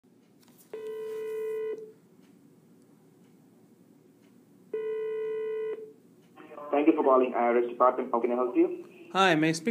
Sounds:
Speech

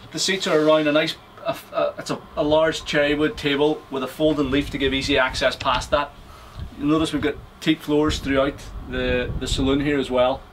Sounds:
Speech

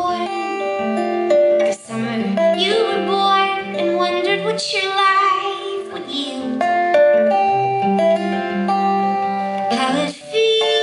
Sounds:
Music, inside a large room or hall, Singing

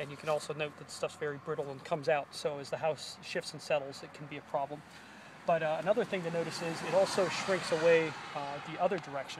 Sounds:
Speech

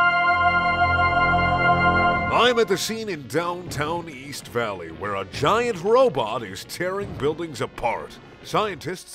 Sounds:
Speech, Music

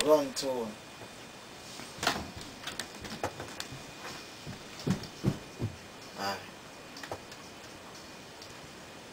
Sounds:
Speech

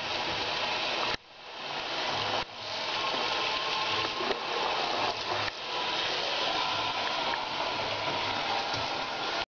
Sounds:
Water, Water tap, Sink (filling or washing)

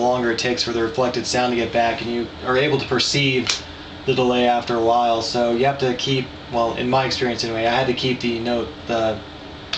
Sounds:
Speech

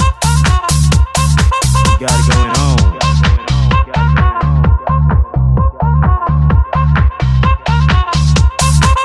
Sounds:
Electronic music, Music, House music

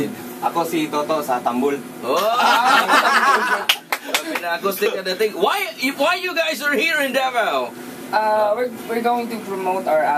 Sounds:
Speech

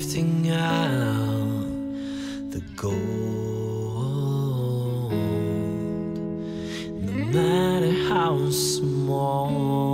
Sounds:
Sad music, Music

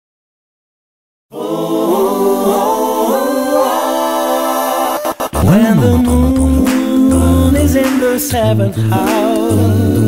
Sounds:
Vocal music, Music

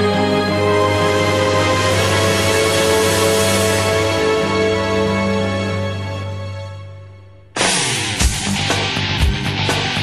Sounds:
Theme music, Rock music, Music

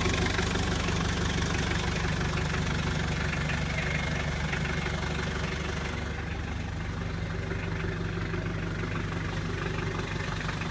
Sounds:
Idling, Vehicle, Engine

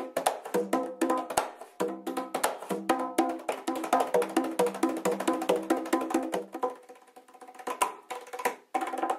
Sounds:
playing bongo

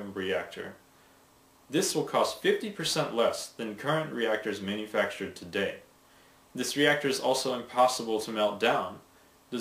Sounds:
Speech

